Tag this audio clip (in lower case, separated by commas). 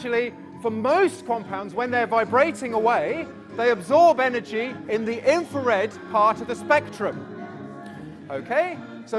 speech, music